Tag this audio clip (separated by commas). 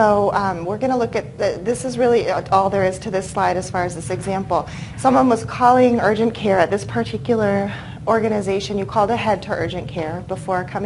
Speech